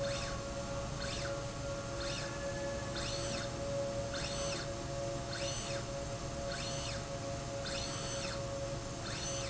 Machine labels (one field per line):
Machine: slide rail